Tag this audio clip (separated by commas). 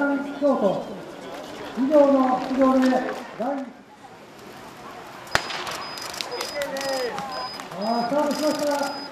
inside a public space, Run, Speech